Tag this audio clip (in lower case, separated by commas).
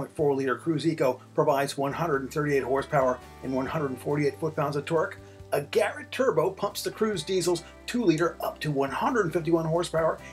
music, speech